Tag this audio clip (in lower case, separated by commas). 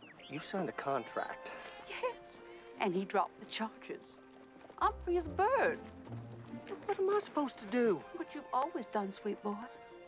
speech, music